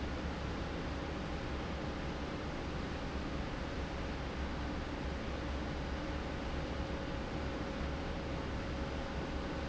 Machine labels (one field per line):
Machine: fan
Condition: normal